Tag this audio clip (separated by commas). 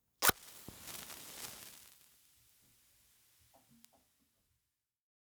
Fire